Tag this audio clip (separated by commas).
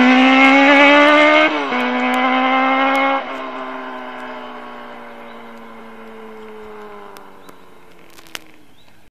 Clatter